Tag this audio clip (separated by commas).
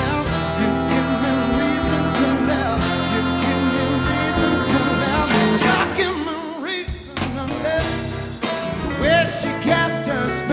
Male singing, Music